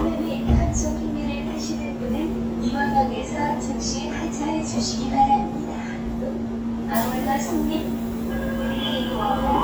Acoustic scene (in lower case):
subway train